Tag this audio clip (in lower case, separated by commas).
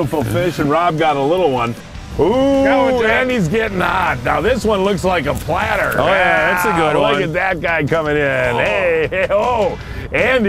speech, music